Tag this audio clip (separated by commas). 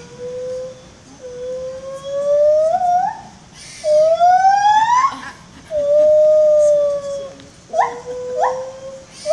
gibbon howling